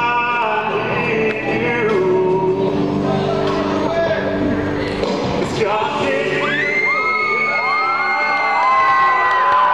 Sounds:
music, male singing

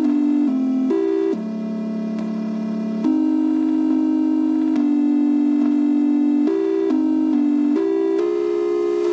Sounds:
music

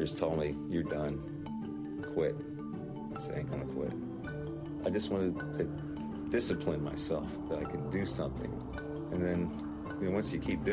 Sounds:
music, speech, inside a small room

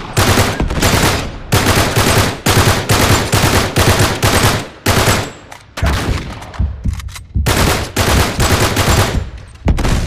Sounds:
fusillade

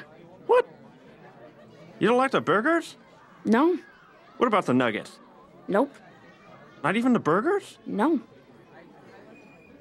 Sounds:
speech

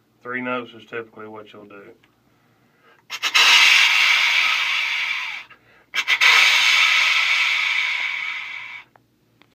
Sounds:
wheeze, speech

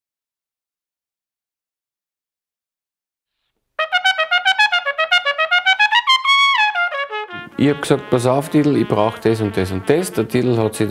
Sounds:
music, musical instrument, brass instrument, trumpet, speech

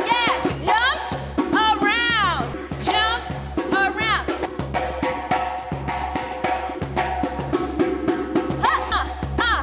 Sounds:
music, speech

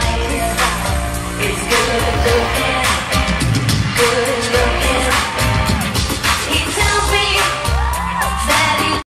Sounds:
music

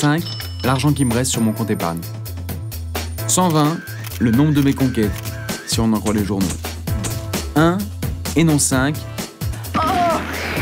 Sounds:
speech, music

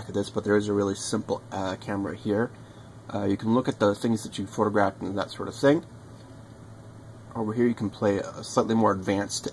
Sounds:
speech

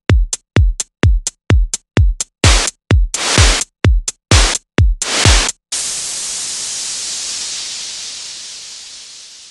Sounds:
techno, music

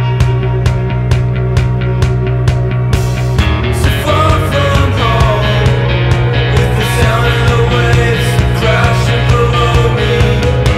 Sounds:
music

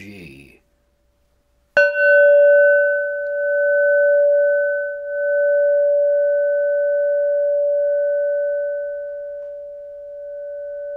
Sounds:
speech, bell

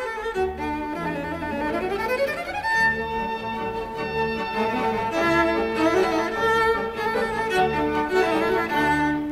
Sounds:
violin, bowed string instrument

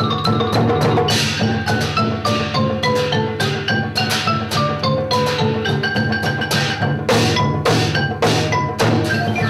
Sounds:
mallet percussion, glockenspiel, xylophone

